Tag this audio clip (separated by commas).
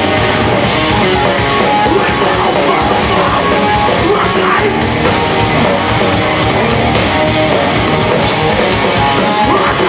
Music